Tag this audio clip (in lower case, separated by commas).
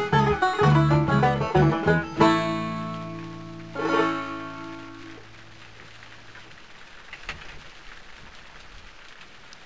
musical instrument, plucked string instrument, banjo, music